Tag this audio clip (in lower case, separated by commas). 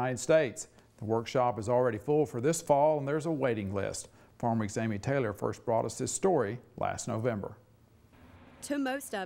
speech